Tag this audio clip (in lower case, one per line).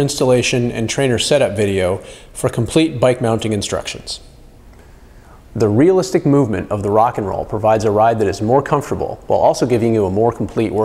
speech